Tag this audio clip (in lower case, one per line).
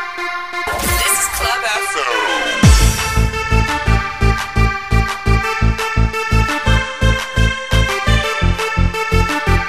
zing
music